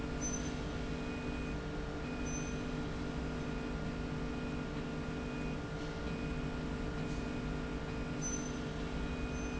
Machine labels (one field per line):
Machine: slide rail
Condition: normal